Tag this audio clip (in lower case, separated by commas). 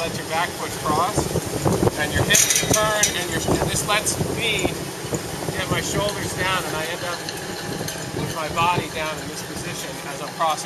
outside, urban or man-made, speech